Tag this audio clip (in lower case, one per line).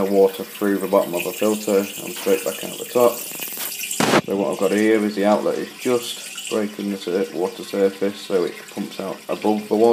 water
speech